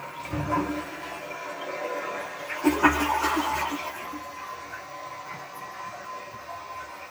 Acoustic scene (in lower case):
restroom